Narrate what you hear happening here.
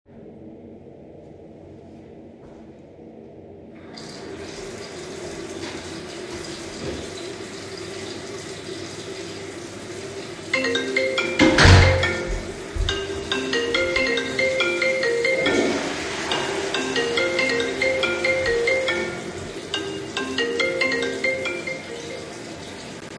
I was in the public restroom and let the water run. Then someone opened and closed the door. While that was happening, my phone rang. Then someone else flushed the toilet.